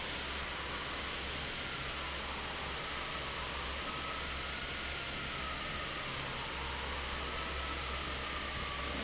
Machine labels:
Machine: fan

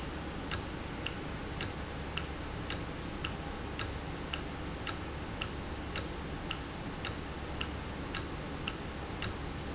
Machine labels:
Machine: valve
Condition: normal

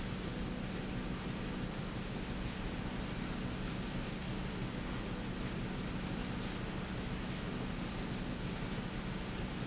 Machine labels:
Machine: slide rail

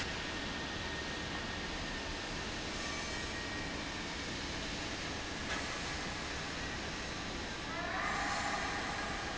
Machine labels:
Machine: fan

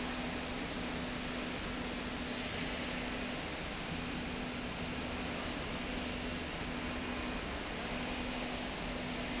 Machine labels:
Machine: slide rail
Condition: normal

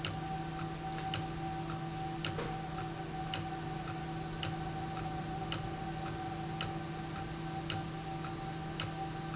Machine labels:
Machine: valve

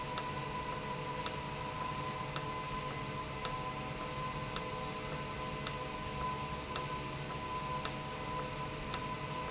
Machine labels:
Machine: valve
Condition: normal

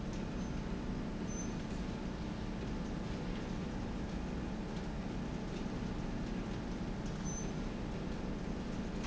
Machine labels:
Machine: slide rail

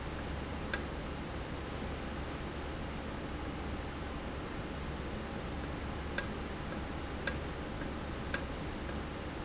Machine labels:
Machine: valve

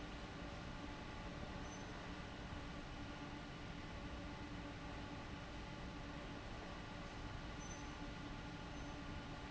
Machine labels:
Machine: fan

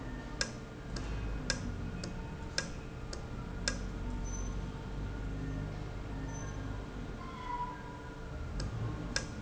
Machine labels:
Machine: valve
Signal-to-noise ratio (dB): -6 dB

